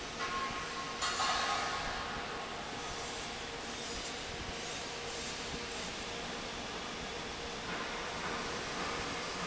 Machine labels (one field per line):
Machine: fan